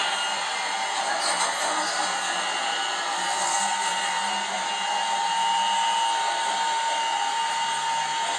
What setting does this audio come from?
subway train